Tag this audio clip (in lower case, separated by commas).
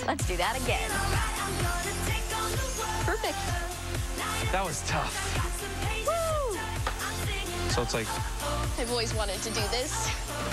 speech, music